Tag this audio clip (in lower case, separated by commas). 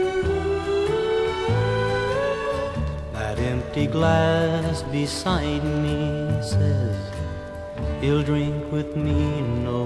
music